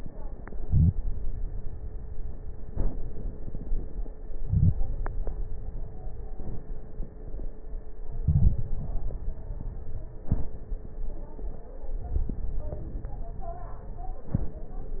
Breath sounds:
0.63-0.97 s: inhalation
4.41-4.82 s: inhalation
8.23-8.64 s: inhalation
8.23-8.64 s: crackles

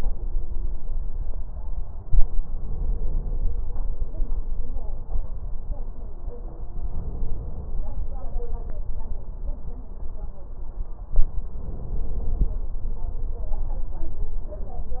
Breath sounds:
2.52-3.53 s: inhalation
6.84-7.85 s: inhalation
11.58-12.60 s: inhalation

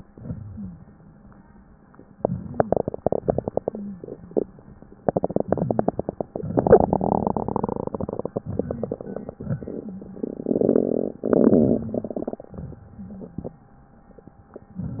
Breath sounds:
0.00-0.87 s: exhalation
0.00-0.87 s: crackles
2.16-3.17 s: inhalation
2.16-3.17 s: crackles
3.21-5.00 s: exhalation
3.60-4.05 s: wheeze
5.20-6.21 s: inhalation
5.49-5.92 s: wheeze
6.36-8.17 s: exhalation
6.36-8.17 s: crackles
8.33-8.95 s: wheeze
8.33-9.26 s: inhalation
9.37-11.49 s: exhalation
9.37-11.49 s: crackles
11.56-12.43 s: inhalation
11.56-12.43 s: crackles
12.51-13.59 s: exhalation
12.51-13.59 s: crackles

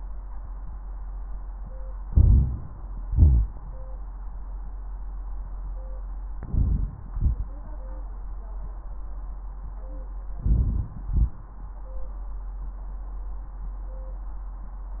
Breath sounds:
2.07-2.62 s: inhalation
2.07-2.62 s: crackles
3.09-3.50 s: exhalation
3.09-3.50 s: wheeze
6.47-6.96 s: inhalation
6.47-6.96 s: crackles
7.13-7.45 s: exhalation
10.39-10.86 s: inhalation
11.06-11.34 s: exhalation

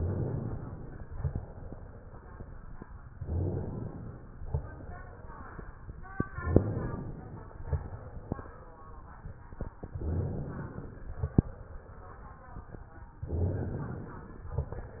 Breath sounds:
0.00-1.12 s: inhalation
1.12-2.45 s: exhalation
3.13-4.46 s: inhalation
4.52-5.84 s: exhalation
6.34-7.67 s: inhalation
7.67-8.99 s: exhalation
10.00-11.33 s: inhalation
11.33-12.65 s: exhalation
13.21-14.53 s: inhalation

